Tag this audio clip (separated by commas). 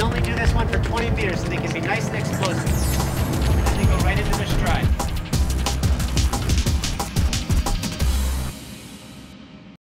Run, Music, Speech